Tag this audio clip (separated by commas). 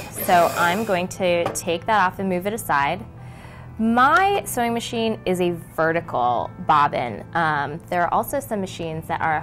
Speech